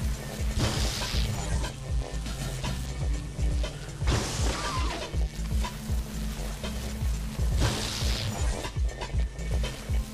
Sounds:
music

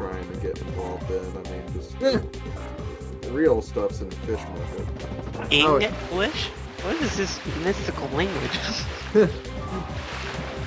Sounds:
music, speech

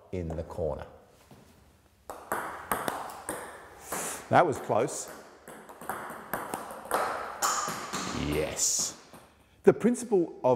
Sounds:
playing table tennis

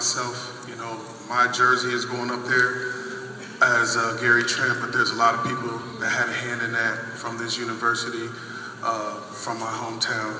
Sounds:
man speaking, narration, speech

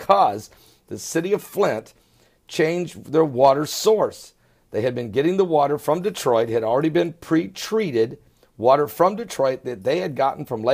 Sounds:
speech

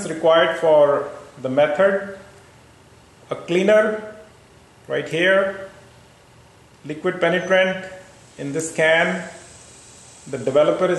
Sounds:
speech

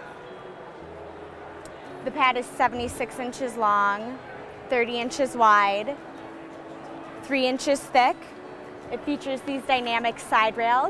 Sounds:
static, music, speech

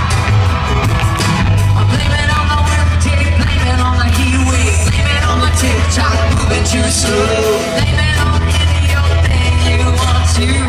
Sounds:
singing, inside a large room or hall, music

